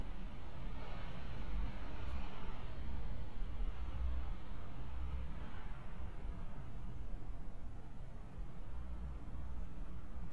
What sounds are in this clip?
background noise